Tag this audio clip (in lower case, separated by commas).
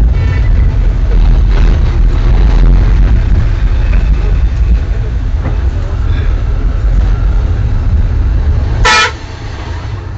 vehicle, honking, speech